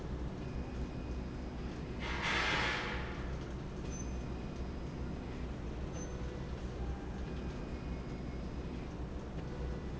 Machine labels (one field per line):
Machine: slide rail